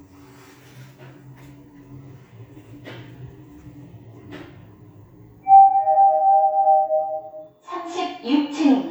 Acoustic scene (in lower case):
elevator